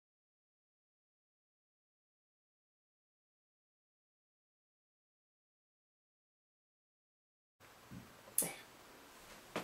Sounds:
Speech

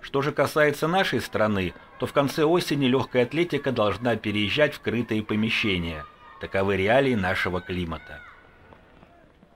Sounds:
Speech, Run

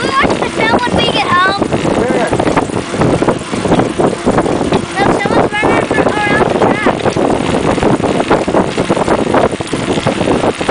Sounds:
Speech, Bicycle

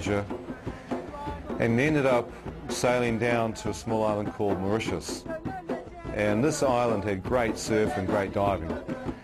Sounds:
Music, Speech

